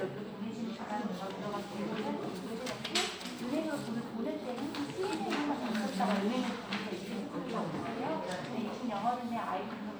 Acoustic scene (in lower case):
crowded indoor space